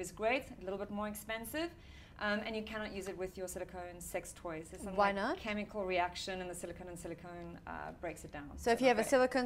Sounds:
inside a small room
speech

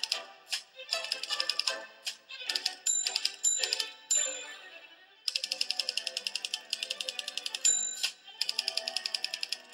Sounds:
typing on typewriter

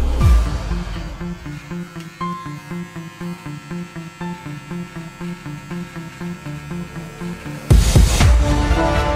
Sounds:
electric razor shaving

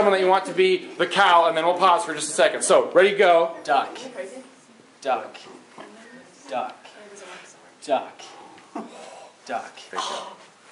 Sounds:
speech

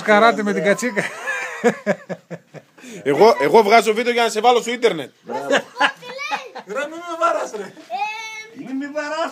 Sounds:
speech
laughter

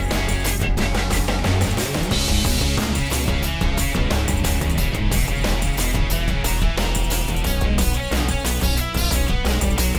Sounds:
music

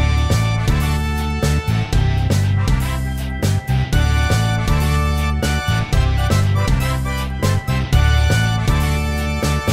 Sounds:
music

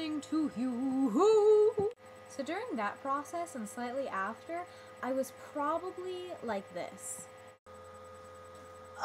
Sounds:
speech

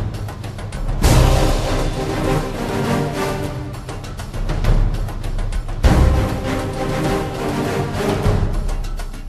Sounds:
music

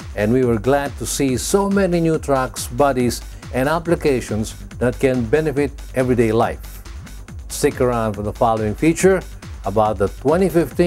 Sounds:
speech
music

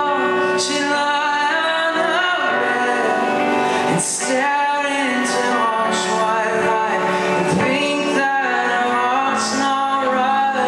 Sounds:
music

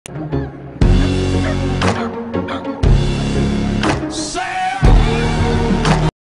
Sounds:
music
dog
bow-wow
animal
pets

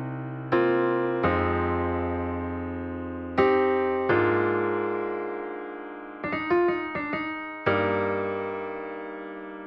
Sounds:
music

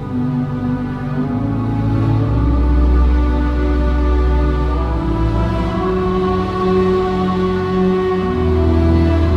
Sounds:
music
inside a small room

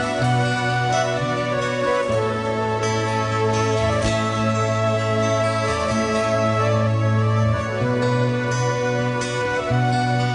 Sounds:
music

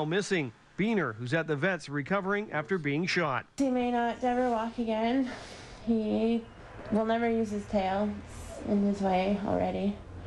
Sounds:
speech

